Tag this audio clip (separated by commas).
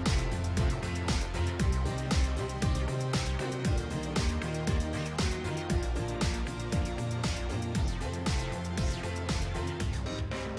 Music